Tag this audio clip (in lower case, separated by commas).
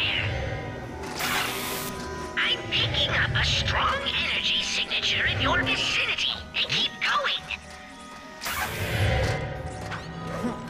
speech, music